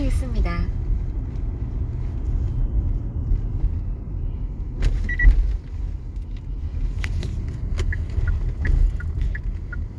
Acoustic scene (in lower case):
car